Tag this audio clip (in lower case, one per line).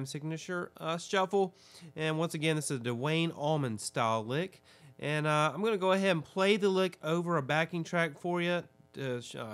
speech